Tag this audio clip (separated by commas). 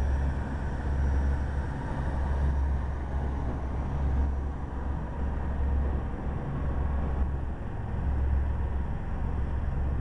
Vehicle, Boat, speedboat